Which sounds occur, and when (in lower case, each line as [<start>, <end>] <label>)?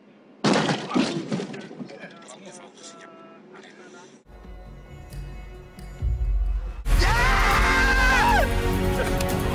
[0.00, 4.19] car
[0.38, 2.36] generic impact sounds
[1.76, 3.34] man speaking
[3.48, 4.18] man speaking
[4.25, 9.54] music
[6.98, 8.44] shout
[9.14, 9.27] tick
[9.51, 9.54] tick